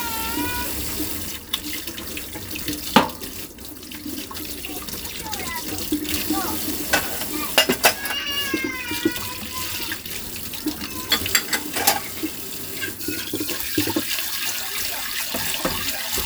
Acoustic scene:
kitchen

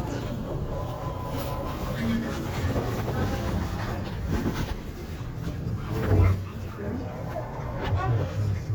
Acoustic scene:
elevator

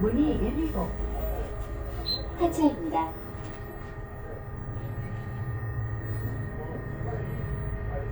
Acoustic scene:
bus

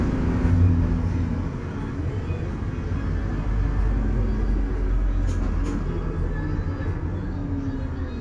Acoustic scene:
bus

